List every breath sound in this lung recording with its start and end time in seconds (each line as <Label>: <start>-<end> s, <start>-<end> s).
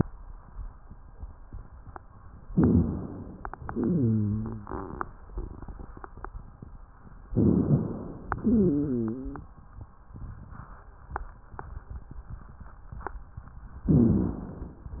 Inhalation: 2.50-3.63 s, 7.29-8.41 s, 13.87-14.88 s
Exhalation: 3.66-4.82 s, 8.43-9.51 s
Wheeze: 3.66-4.82 s, 8.43-9.51 s